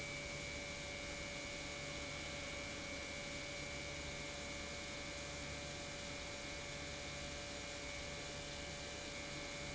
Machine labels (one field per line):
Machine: pump